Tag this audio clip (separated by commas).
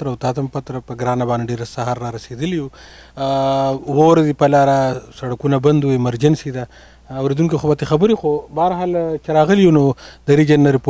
Speech